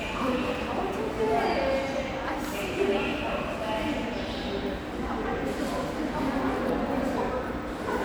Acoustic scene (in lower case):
subway station